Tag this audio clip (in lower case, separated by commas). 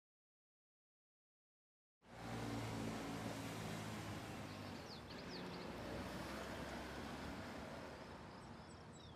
vehicle, car, outside, rural or natural